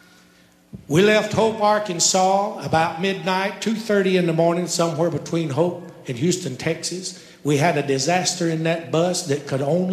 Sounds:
speech

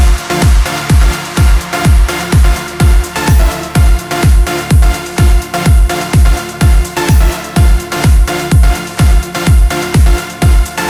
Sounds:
music
electronic music

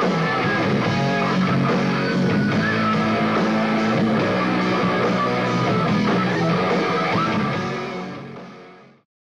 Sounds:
music

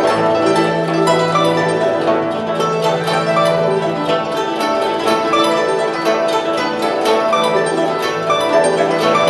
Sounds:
classical music
musical instrument
music
zither

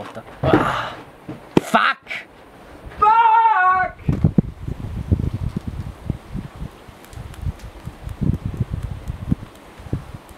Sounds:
speech
wind

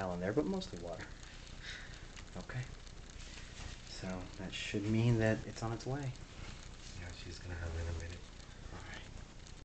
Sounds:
speech

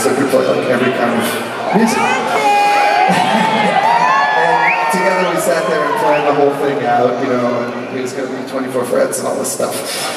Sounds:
speech

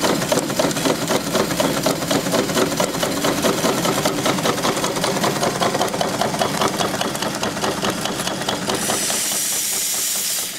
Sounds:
engine
outside, rural or natural

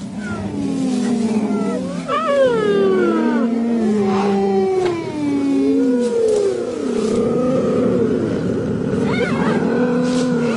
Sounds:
cheetah chirrup

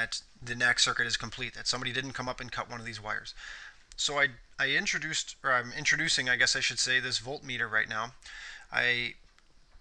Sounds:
speech

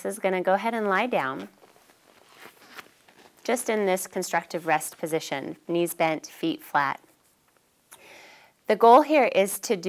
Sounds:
speech

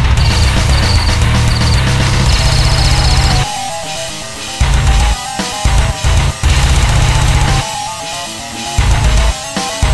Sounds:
music

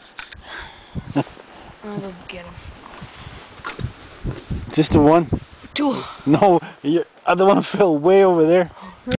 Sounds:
speech

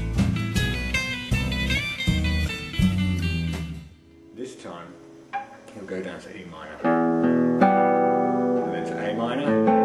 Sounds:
blues
music
speech
plucked string instrument
musical instrument
acoustic guitar
guitar

